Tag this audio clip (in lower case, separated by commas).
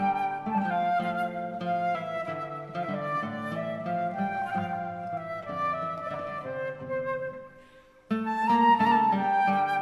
music, musical instrument, guitar